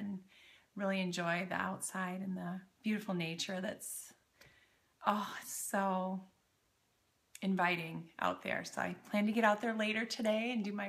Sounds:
Speech

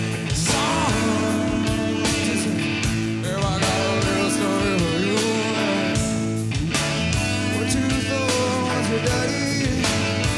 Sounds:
Music

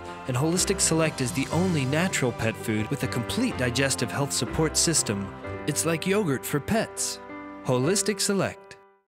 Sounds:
Speech, Music

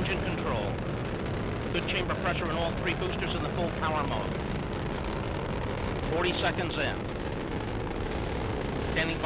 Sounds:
missile launch

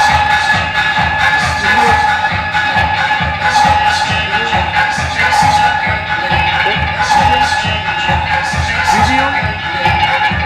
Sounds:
Music, Techno, Speech

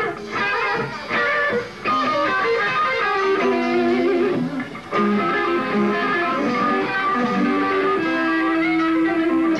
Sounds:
Music

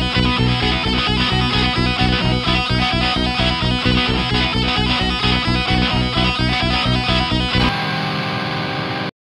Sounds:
Acoustic guitar, Music, Guitar, Plucked string instrument, Musical instrument, Strum, Electric guitar

